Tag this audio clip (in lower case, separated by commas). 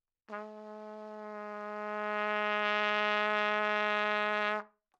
music, trumpet, brass instrument, musical instrument